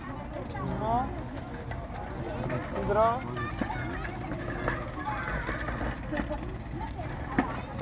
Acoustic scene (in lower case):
park